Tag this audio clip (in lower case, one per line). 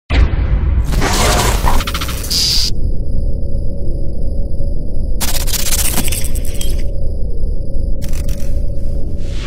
music